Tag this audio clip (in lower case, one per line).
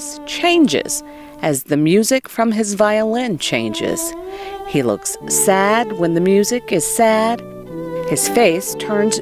speech
music